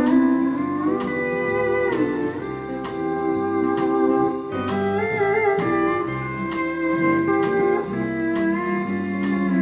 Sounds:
music
slide guitar

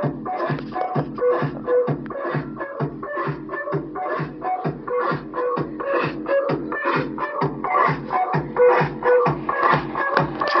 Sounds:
music

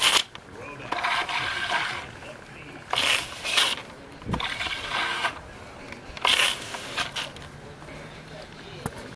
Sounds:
speech

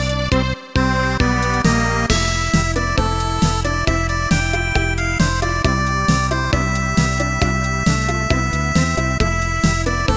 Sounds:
music

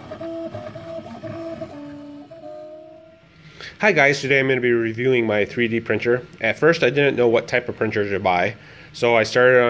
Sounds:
speech
printer

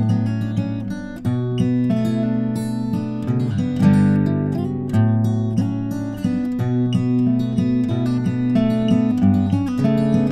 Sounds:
electric guitar
guitar
music
musical instrument
acoustic guitar

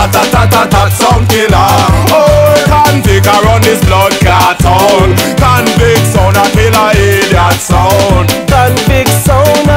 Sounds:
music

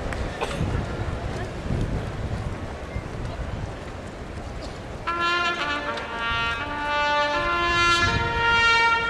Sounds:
speech
music

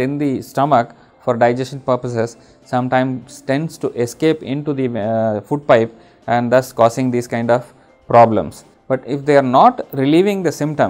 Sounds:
music
speech

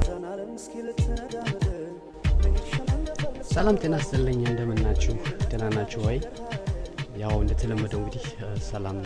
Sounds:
speech
music

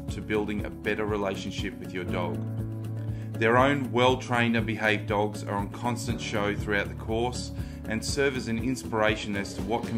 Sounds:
music
speech

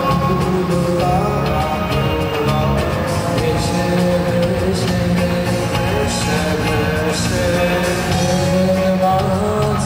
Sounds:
music

